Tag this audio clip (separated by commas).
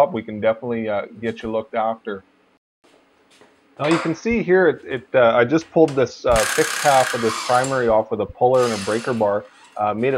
inside a large room or hall, Speech